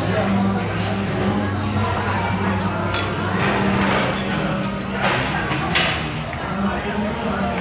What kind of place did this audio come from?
restaurant